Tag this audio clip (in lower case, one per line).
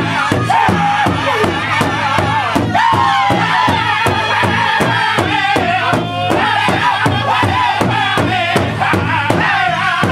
music
male singing